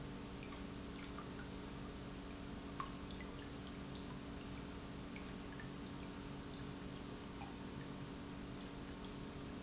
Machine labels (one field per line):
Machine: pump